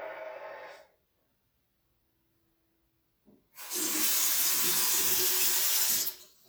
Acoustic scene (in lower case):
restroom